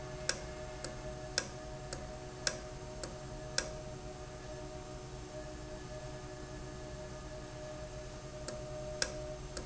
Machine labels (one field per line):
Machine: valve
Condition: normal